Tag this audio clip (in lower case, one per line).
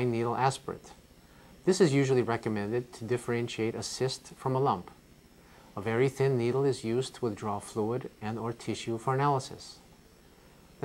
speech